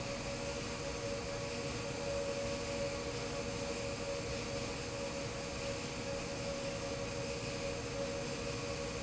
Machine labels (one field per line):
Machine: fan